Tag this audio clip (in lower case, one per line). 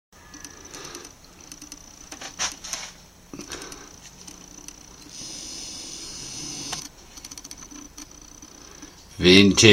speech